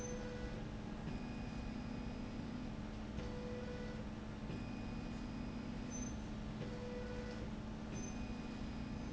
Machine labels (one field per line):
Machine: slide rail